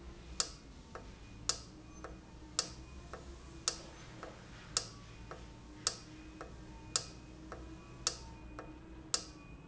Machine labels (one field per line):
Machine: valve